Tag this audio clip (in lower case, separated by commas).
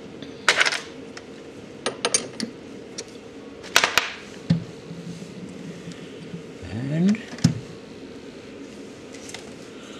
speech